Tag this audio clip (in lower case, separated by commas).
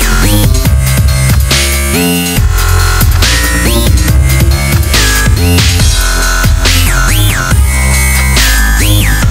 music, drum and bass, dubstep, electronic music